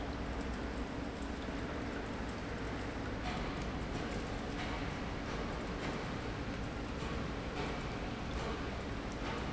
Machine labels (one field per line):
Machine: pump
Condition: normal